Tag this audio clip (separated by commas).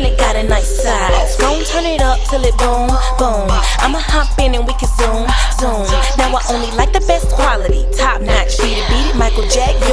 Music, Independent music